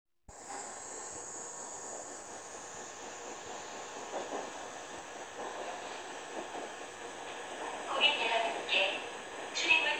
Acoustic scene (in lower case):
subway train